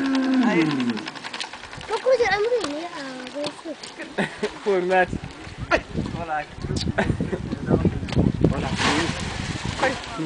A man and a child speaking and laughing by lapping water followed by a splash